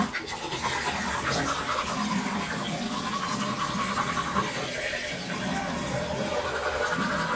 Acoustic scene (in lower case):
restroom